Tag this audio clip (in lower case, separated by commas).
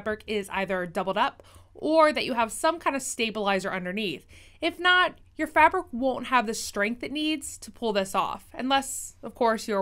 speech